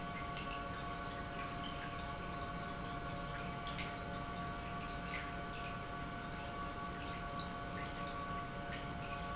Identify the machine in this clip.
pump